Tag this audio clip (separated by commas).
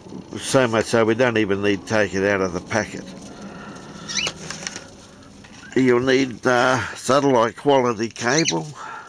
Bird, Bird vocalization